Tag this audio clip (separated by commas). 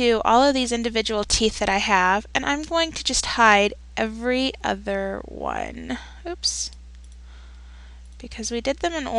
Speech